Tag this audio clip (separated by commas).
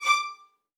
Musical instrument, Music, Bowed string instrument